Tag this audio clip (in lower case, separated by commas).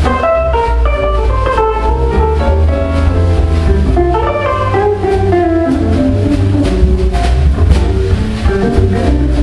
music, jazz